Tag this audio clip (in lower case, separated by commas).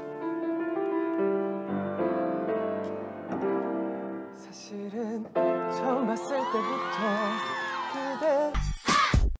music, male singing